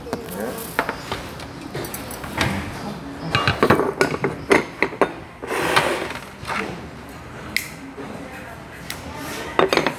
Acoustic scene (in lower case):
restaurant